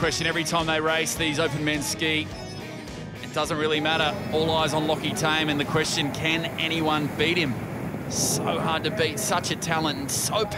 A man speaks, wind blows and waves crash